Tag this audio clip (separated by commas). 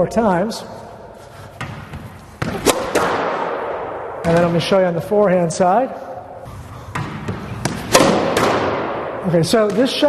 Speech